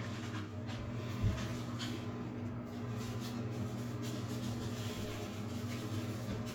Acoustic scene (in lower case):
restroom